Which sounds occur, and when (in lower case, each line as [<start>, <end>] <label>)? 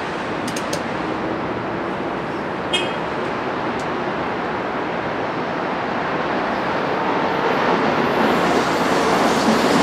[0.00, 9.82] train
[0.00, 9.82] wind
[0.43, 0.57] tick
[0.70, 0.79] tick
[2.70, 3.08] vehicle horn
[3.73, 3.83] tick